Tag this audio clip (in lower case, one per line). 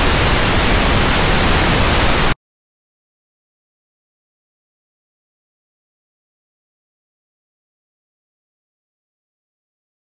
pink noise